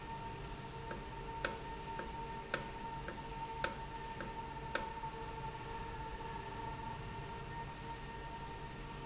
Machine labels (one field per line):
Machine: valve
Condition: normal